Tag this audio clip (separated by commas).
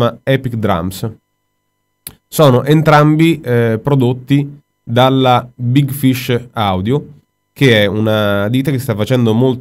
Speech